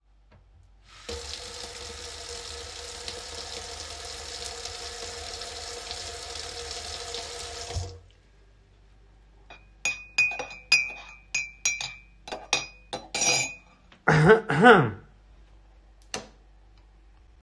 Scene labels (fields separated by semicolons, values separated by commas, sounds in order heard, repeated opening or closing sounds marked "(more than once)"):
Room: kitchen; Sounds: running water, cutlery and dishes, light switch